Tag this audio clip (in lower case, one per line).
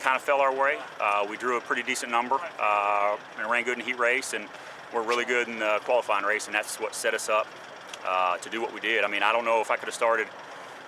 vehicle
speech